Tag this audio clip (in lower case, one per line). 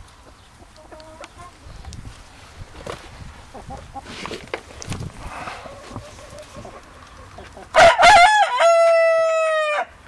chicken
livestock
bird